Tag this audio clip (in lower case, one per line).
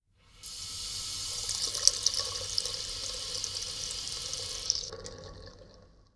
liquid
faucet
home sounds